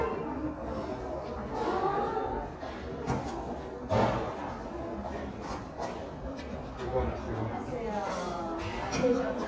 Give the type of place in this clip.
crowded indoor space